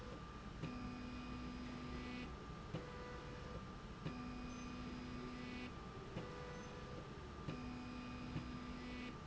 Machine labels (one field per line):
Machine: slide rail